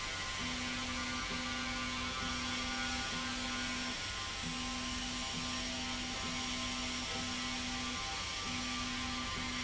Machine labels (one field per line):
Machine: slide rail